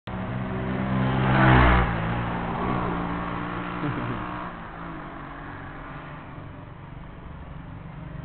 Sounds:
Motorcycle, Vehicle

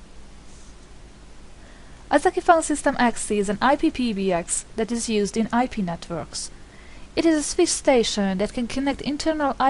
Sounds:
Speech

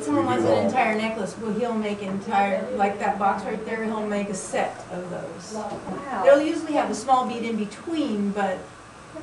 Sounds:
Speech, woman speaking

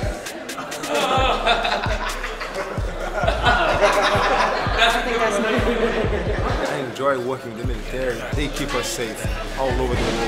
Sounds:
Laughter, Speech

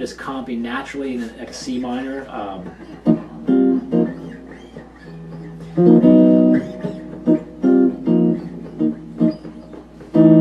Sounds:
Speech, Music

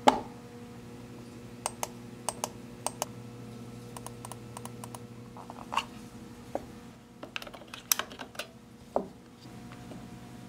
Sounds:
mouse clicking

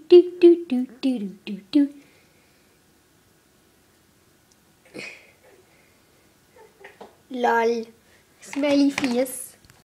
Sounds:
Speech

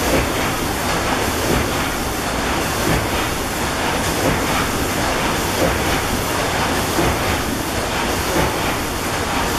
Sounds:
Engine

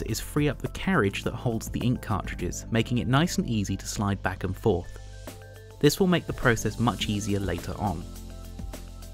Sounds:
Music, Speech

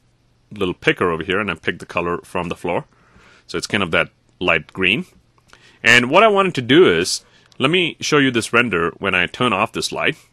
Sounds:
Speech, Narration

